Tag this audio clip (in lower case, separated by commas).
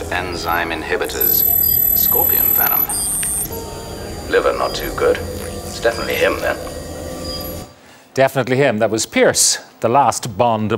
speech